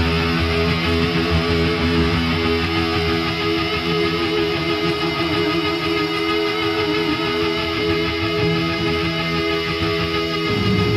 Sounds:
music, heavy metal

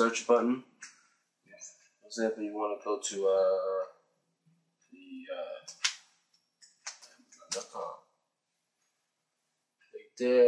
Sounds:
inside a small room, speech

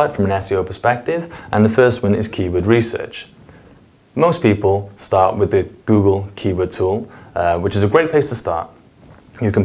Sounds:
speech

